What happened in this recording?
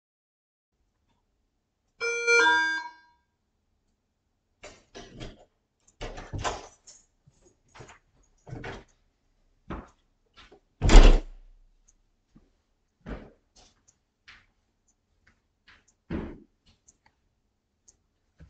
I rang the bell, opened and closed the door and went in.